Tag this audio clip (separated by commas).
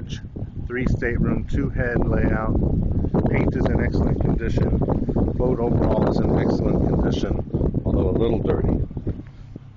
Vehicle, Speech, Water vehicle